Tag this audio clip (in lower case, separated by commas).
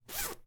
zipper (clothing), home sounds